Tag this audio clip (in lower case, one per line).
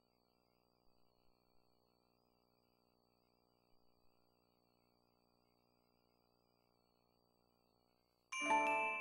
music